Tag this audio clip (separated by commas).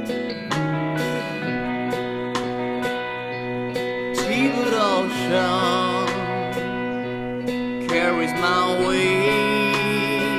Soul music, Music